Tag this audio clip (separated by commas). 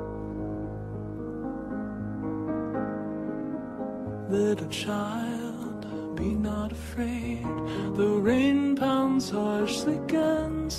Music